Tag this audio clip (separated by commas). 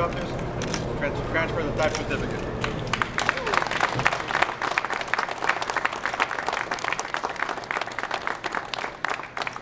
Speech